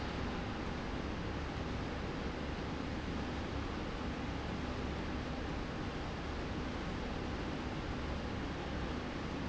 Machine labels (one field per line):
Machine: slide rail